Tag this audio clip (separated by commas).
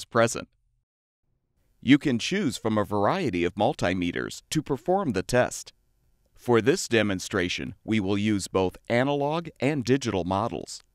Speech